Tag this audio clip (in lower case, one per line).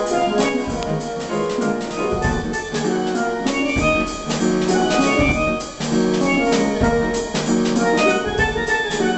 playing steelpan